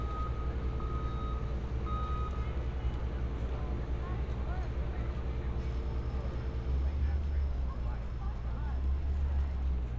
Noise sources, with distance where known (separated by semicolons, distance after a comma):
reverse beeper, far; unidentified human voice